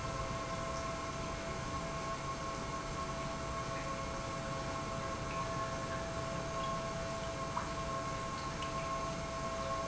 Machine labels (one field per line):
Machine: pump